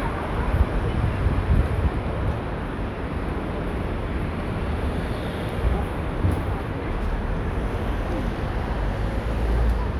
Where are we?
in a residential area